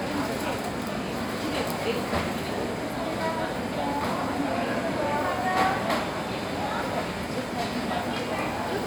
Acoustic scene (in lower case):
crowded indoor space